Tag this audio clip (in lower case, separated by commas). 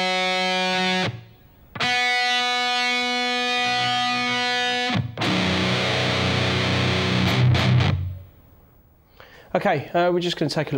musical instrument, music, guitar, strum, plucked string instrument, speech